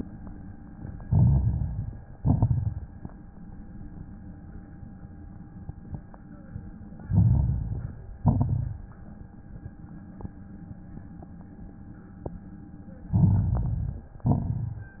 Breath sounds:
Inhalation: 1.01-2.15 s, 7.06-8.20 s, 13.09-14.23 s
Exhalation: 2.16-3.02 s, 8.20-9.05 s, 14.23-15.00 s
Crackles: 1.02-2.12 s, 2.16-3.05 s, 7.04-8.13 s, 8.18-9.06 s, 13.09-14.18 s, 14.23-15.00 s

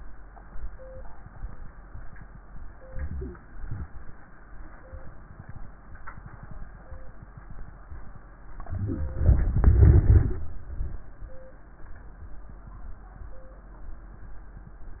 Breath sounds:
Inhalation: 2.88-3.58 s, 8.66-9.43 s
Exhalation: 3.61-4.31 s, 9.48-10.42 s
Crackles: 2.87-3.62 s, 8.68-9.43 s

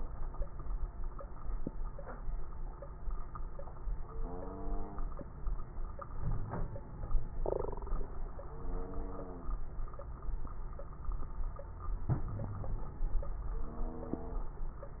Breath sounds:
Wheeze: 6.22-6.81 s, 12.30-12.89 s

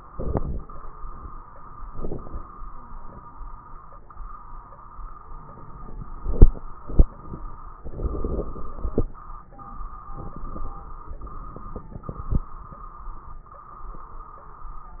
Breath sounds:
Inhalation: 0.11-0.64 s, 1.90-2.43 s, 5.23-6.09 s, 7.92-8.61 s, 10.19-10.75 s
Crackles: 0.11-0.64 s, 7.90-8.59 s, 10.19-10.75 s

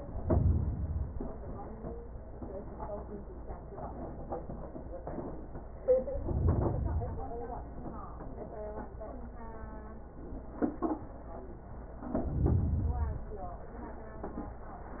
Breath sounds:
Inhalation: 0.00-1.32 s, 6.07-7.39 s, 12.01-13.33 s

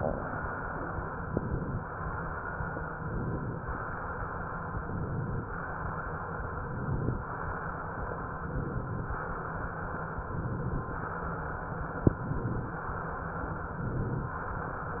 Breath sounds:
Inhalation: 1.16-1.85 s, 3.04-3.72 s, 4.80-5.49 s, 6.51-7.20 s, 8.42-9.11 s, 10.21-10.90 s, 12.14-12.83 s, 13.67-14.35 s

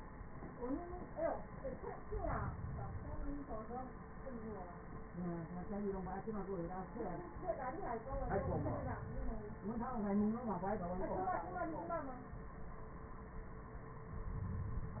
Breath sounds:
Inhalation: 1.88-3.53 s, 7.86-9.51 s

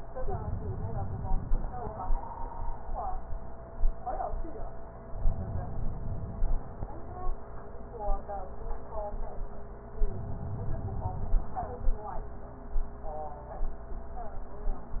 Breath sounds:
Inhalation: 5.12-6.74 s, 10.02-11.64 s

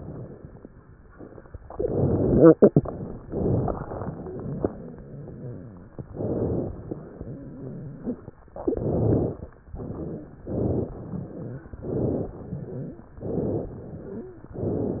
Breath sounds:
Inhalation: 1.73-2.41 s, 6.07-6.91 s, 8.69-9.53 s, 10.44-11.01 s, 11.84-12.30 s, 13.26-13.72 s, 14.55-15.00 s
Exhalation: 3.28-4.59 s, 9.62-10.46 s, 11.01-11.75 s, 12.41-13.10 s, 13.76-14.45 s
Wheeze: 9.98-10.35 s, 12.60-13.10 s, 14.08-14.45 s

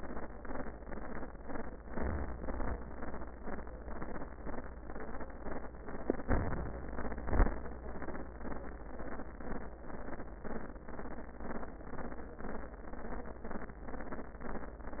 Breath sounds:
Inhalation: 1.83-2.79 s, 6.26-7.25 s
Exhalation: 7.25-7.75 s

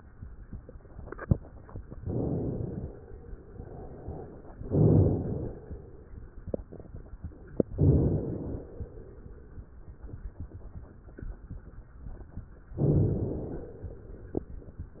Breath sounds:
Inhalation: 2.02-3.02 s, 4.60-5.52 s, 7.73-8.65 s, 12.81-13.73 s

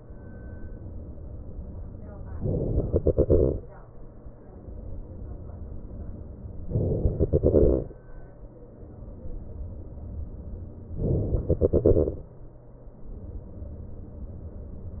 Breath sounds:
Inhalation: 2.39-2.94 s, 6.73-7.23 s, 11.00-11.52 s
Exhalation: 2.98-4.31 s, 7.23-8.43 s, 11.52-12.68 s

